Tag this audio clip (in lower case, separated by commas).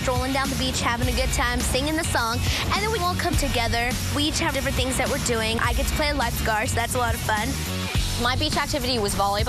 music, speech